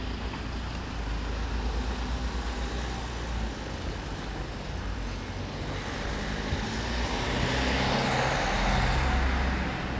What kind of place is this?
residential area